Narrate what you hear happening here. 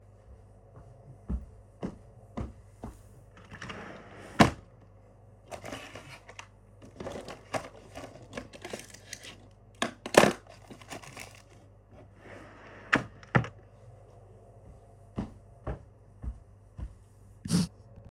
I place the recording device in a fixed position near the drawer. I walk toward it, open the drawer, search inside for a moment, close it again, and then walk away. The device remains stationary during the whole recording.